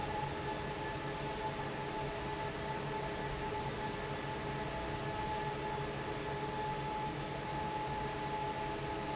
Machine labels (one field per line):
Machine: fan